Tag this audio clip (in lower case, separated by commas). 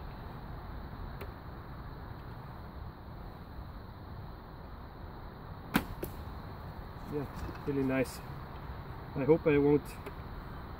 arrow